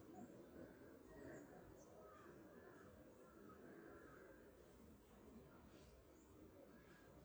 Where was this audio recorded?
in a park